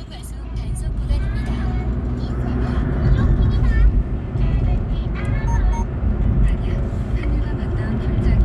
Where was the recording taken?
in a car